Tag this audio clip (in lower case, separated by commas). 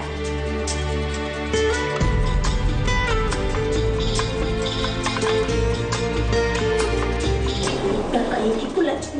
speech, music